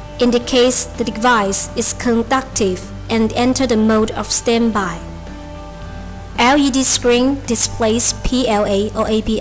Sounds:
Speech, Music

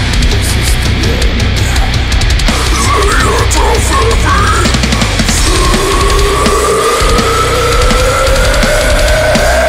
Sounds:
Pop music, Music

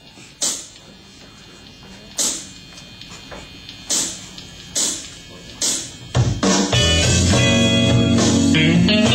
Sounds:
Plucked string instrument, Guitar, Electric guitar, Music, Strum, Musical instrument

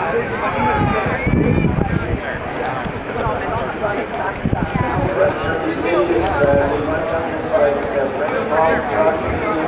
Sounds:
Run, Speech, outside, urban or man-made

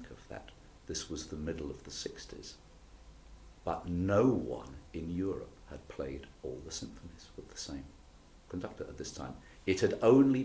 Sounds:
Speech

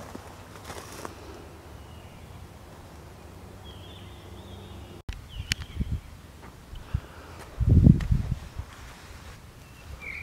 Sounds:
bird song, tweet, Bird

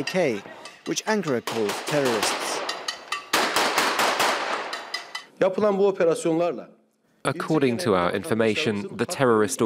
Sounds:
Speech

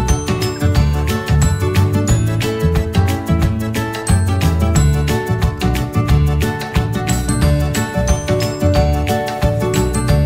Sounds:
Music

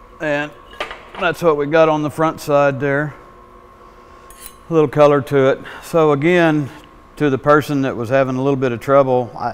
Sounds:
arc welding

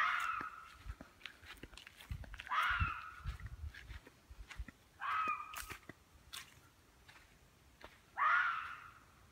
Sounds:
fox barking

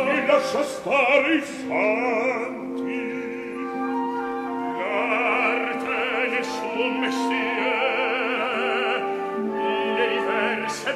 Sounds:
Music, Opera

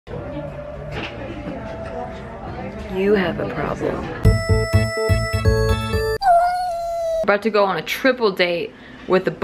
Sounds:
inside a large room or hall, Music, Speech

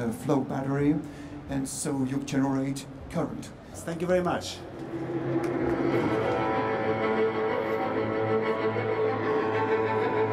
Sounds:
Cello

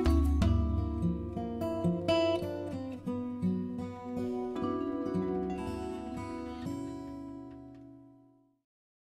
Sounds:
Music

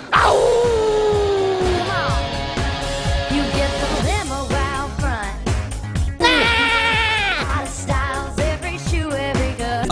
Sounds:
Theme music, Music, Exciting music

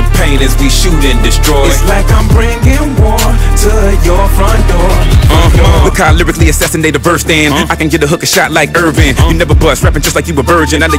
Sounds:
Music

